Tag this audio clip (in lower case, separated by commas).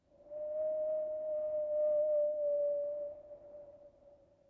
wind